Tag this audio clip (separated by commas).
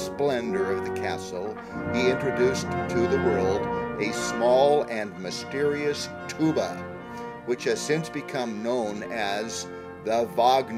Speech, Music